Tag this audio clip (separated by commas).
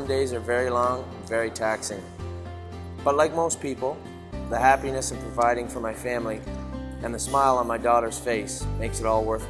Speech, Music